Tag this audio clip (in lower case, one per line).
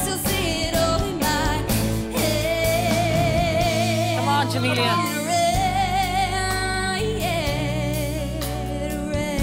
singing
music
pop music